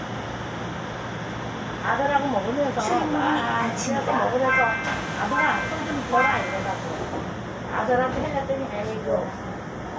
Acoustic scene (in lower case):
subway train